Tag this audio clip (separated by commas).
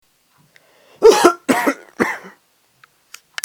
Cough, Respiratory sounds